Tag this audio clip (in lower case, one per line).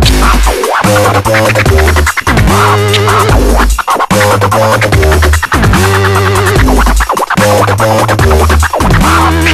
music
electronic music
dubstep